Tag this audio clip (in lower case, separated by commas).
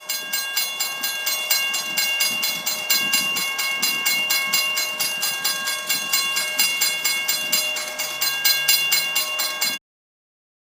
rail transport, train, vehicle